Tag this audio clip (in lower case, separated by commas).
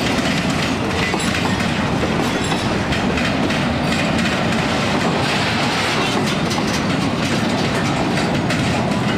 outside, urban or man-made, train, train wagon, vehicle